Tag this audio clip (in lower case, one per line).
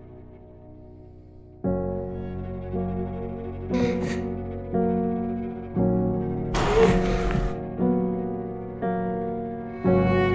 music
plucked string instrument
guitar
musical instrument